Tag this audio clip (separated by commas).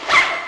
home sounds, Zipper (clothing)